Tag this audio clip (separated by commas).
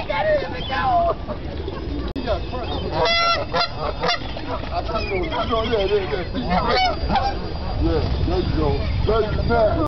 Honk, Goose, goose honking, Fowl